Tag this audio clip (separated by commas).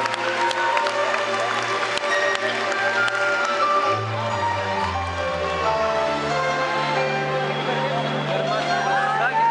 Speech, Music